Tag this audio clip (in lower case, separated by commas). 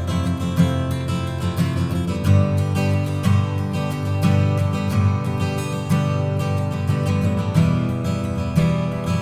acoustic guitar, music